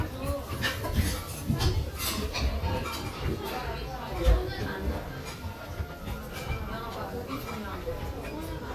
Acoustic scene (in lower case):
restaurant